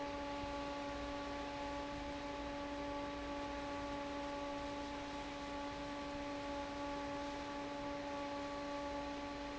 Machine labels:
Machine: fan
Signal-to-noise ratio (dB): 6 dB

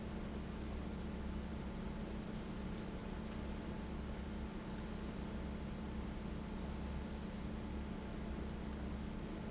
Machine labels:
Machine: fan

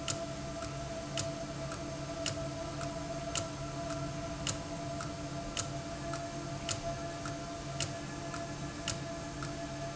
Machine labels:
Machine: valve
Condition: abnormal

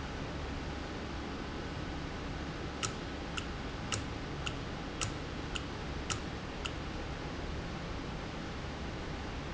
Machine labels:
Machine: valve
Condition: normal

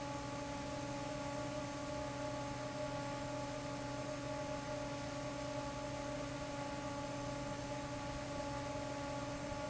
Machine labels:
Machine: fan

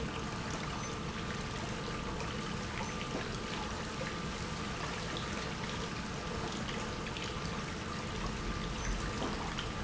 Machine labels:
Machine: pump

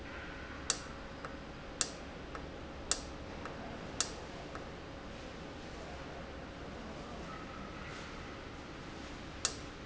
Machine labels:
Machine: valve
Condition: normal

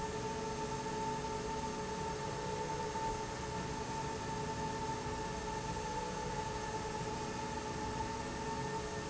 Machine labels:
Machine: slide rail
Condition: normal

